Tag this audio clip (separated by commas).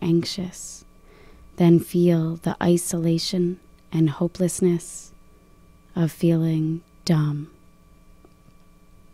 Speech